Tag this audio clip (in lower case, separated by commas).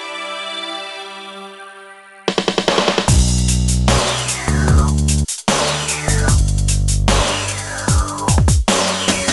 bass drum, drum, music, musical instrument